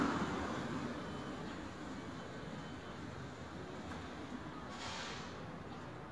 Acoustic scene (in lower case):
street